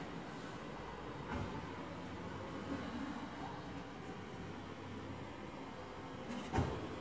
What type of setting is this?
residential area